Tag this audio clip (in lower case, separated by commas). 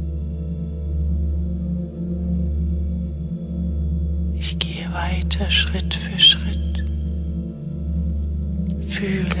speech, music, singing bowl